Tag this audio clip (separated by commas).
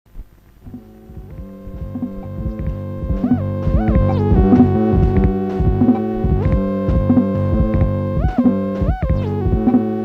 Music